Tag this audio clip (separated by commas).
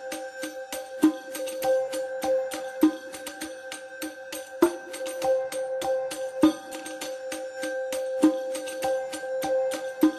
Music